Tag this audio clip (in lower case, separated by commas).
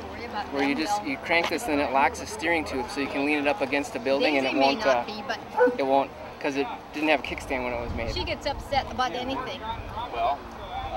speech